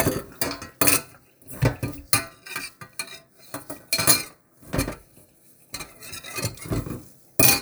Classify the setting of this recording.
kitchen